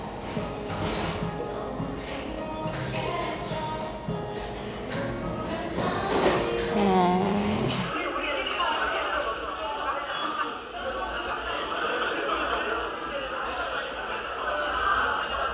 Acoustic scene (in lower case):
cafe